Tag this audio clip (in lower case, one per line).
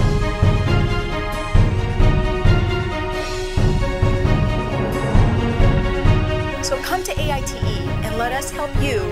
theme music